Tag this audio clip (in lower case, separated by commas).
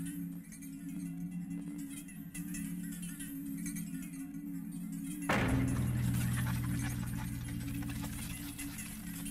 maraca, music